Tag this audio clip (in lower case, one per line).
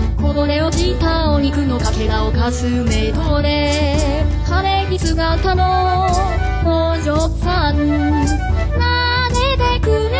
music